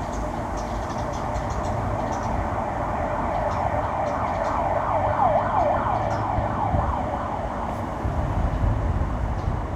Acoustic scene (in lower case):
residential area